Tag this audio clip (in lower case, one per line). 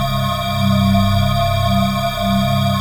organ
musical instrument
keyboard (musical)
music